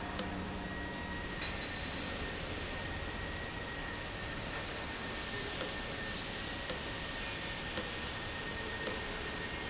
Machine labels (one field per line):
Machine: valve